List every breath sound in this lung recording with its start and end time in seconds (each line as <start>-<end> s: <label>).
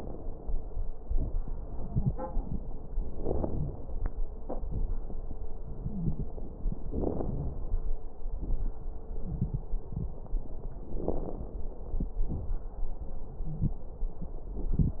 3.06-3.70 s: inhalation
3.06-3.70 s: crackles
4.60-4.92 s: exhalation
4.60-4.92 s: crackles
5.86-6.40 s: wheeze
6.87-7.40 s: inhalation
6.87-7.40 s: crackles
8.37-8.78 s: exhalation
8.37-8.78 s: crackles
10.93-11.46 s: inhalation
10.93-11.46 s: crackles
12.27-12.65 s: exhalation
12.27-12.65 s: crackles